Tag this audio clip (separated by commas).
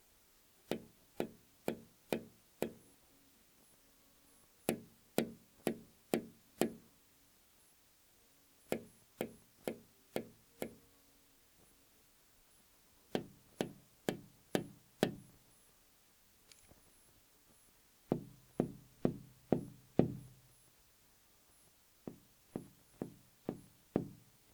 Tap